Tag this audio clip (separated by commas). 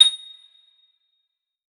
Bell, Chime